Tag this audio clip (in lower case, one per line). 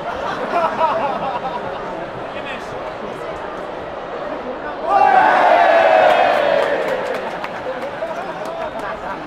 speech